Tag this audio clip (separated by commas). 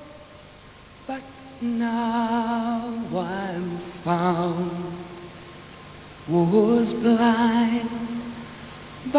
Singing